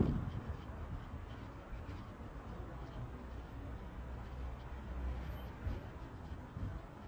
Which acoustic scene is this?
residential area